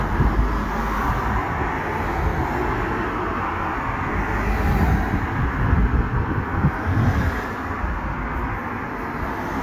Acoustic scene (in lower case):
street